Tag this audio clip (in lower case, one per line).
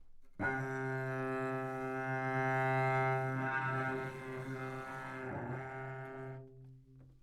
music
musical instrument
bowed string instrument